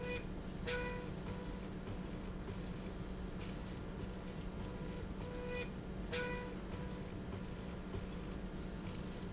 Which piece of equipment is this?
slide rail